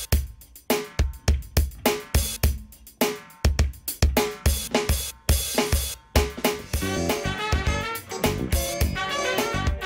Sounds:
music

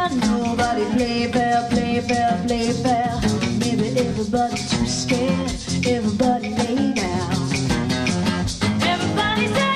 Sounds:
rattle (instrument), music, singing

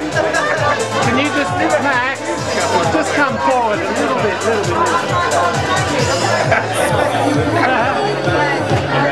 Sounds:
music, crowd, speech

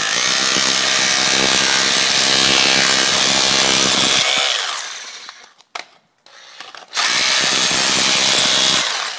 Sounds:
power tool

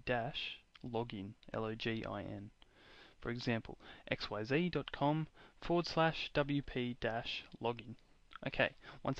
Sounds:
speech

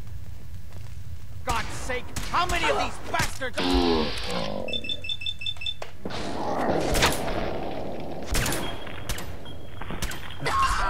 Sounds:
speech

